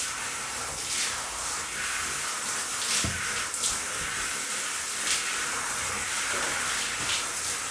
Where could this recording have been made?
in a restroom